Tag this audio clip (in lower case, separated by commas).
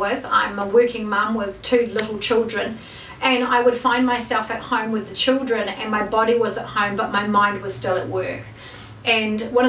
speech